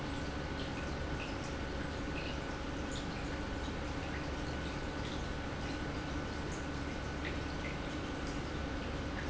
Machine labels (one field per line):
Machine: pump